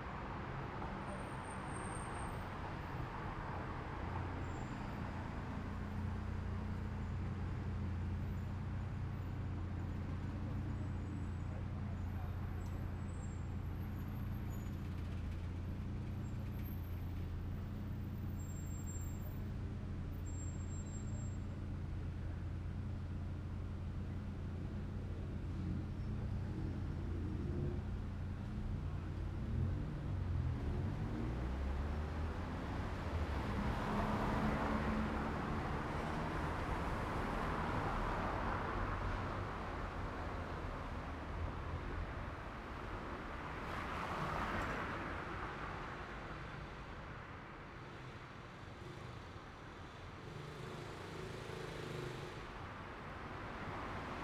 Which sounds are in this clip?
car, motorcycle, car wheels rolling, car engine idling, car engine accelerating, motorcycle engine accelerating, people talking